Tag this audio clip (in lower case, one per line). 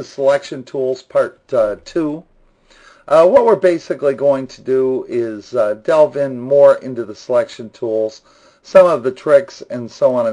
speech